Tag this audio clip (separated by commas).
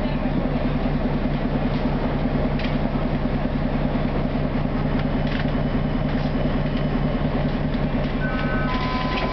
Vehicle